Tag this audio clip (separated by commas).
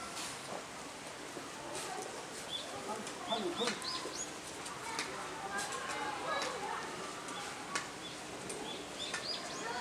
pheasant crowing